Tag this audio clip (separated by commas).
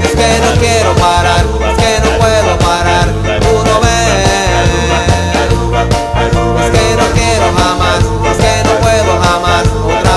Music